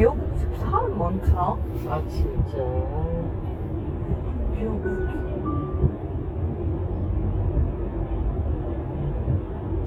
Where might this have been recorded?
in a car